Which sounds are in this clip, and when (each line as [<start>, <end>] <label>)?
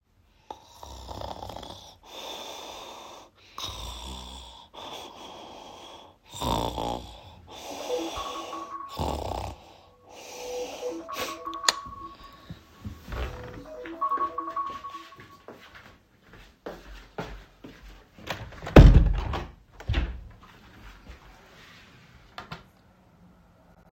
[8.02, 15.36] phone ringing
[13.99, 18.04] footsteps
[18.23, 19.54] window
[19.79, 20.30] footsteps